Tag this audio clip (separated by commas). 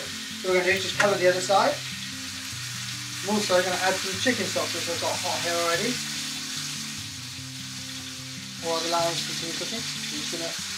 Speech, Music, inside a small room